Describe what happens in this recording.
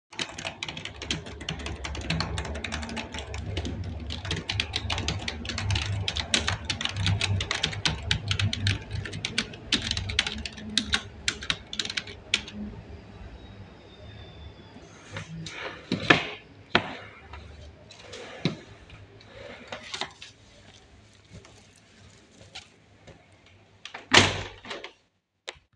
I was typing on my keyboard while working on my computer. Because the weather was cold, I opened the wardrobe to take out a hoodie. After that, I closed the window to stop the cold air from coming indoors.